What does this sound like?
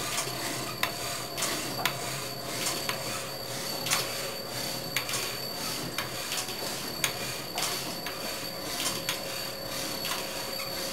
Machine running and continuous clicking